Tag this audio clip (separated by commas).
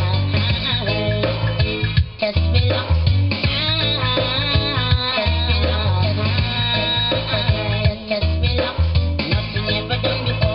Music